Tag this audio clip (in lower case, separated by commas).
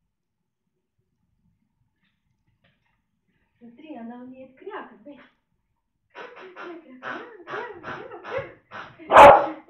speech, animal